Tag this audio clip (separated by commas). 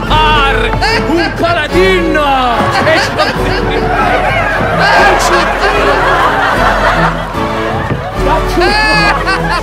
Music, Speech